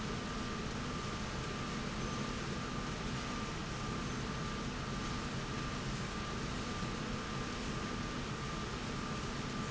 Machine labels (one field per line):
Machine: slide rail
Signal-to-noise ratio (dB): -6 dB